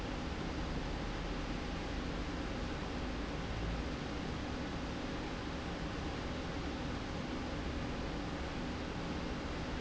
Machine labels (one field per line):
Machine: slide rail